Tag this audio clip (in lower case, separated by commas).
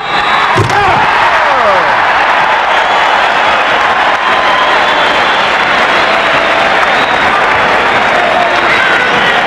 speech, slam